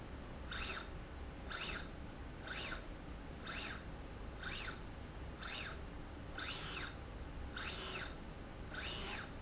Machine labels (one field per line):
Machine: slide rail